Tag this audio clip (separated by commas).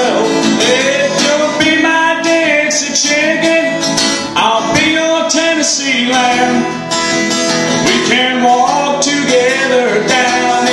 Music, Independent music